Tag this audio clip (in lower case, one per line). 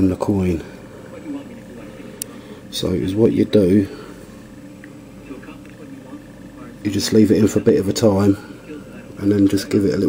speech